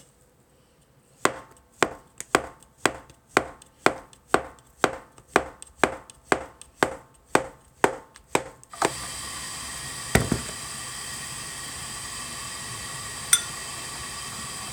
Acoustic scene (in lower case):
kitchen